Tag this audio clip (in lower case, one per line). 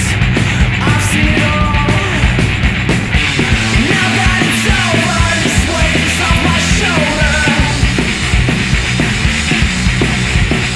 music